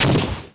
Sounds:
explosion

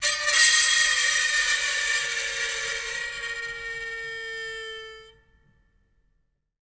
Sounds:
screech

